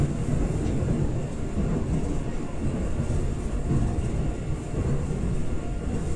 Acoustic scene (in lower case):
subway train